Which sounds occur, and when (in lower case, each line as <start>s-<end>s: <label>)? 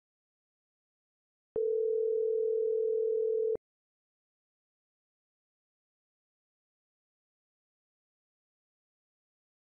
1.5s-3.6s: dial tone